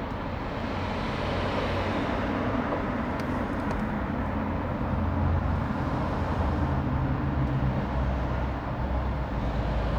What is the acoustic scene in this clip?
residential area